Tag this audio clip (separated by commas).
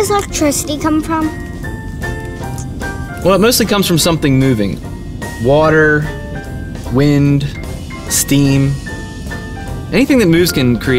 Music, Speech